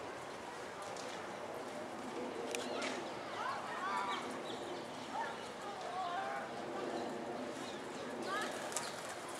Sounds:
Coo, Speech, Bird

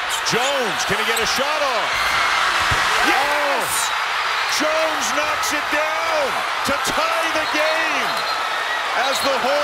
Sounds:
basketball bounce

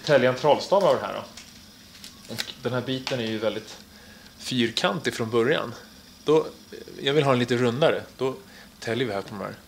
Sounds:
Speech

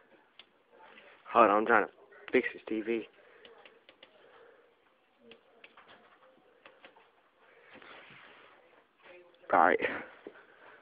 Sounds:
inside a small room, Speech

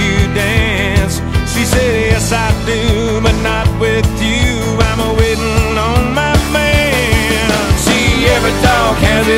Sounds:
Music

